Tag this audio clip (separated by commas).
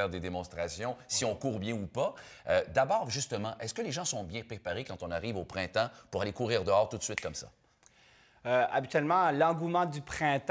Speech, inside a large room or hall